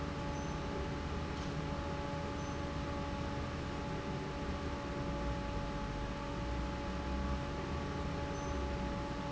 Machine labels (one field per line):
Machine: fan